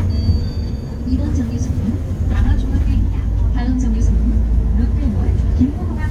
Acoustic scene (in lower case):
bus